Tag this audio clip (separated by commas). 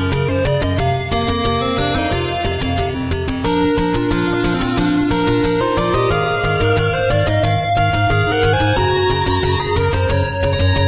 Music